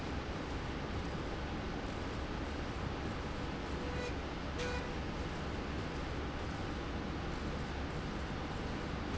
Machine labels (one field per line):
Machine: slide rail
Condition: normal